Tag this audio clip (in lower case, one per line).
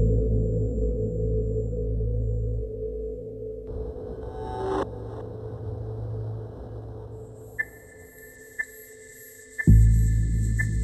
music